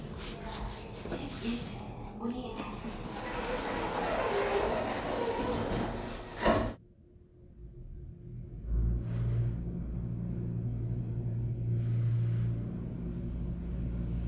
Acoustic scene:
elevator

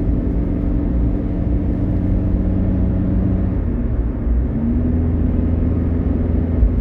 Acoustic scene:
car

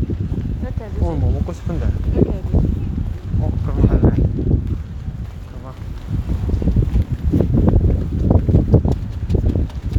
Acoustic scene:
street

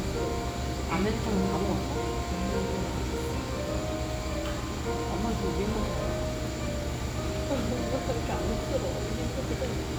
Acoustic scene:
cafe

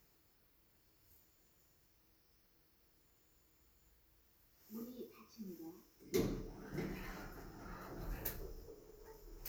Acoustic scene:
elevator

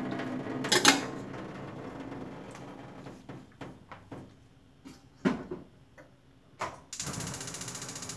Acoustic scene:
kitchen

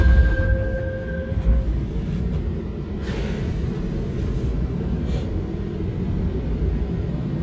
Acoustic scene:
subway train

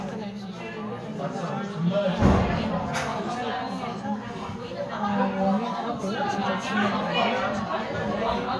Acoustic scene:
crowded indoor space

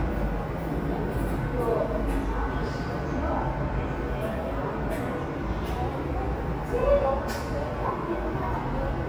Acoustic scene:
subway station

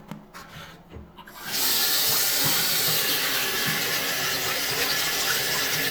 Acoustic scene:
restroom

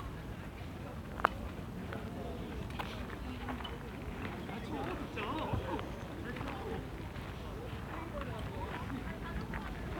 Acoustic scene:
park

